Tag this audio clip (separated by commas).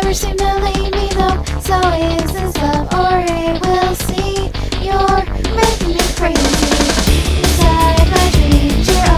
Music, Female singing